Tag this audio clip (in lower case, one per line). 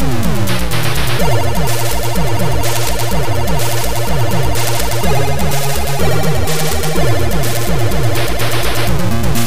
music
theme music